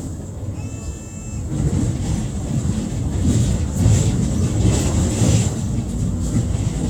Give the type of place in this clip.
bus